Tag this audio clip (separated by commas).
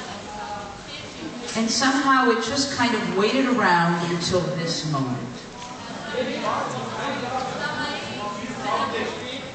Speech